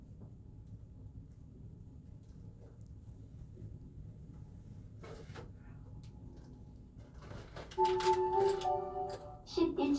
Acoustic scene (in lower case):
elevator